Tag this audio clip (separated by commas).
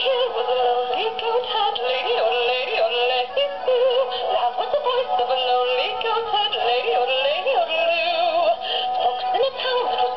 Synthetic singing, Music